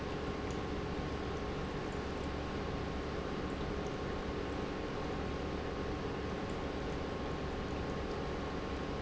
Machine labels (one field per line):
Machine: pump